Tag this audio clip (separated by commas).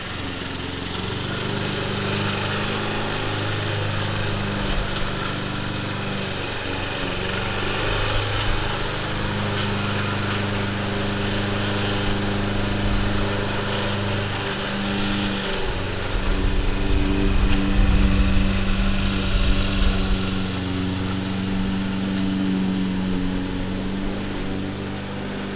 Engine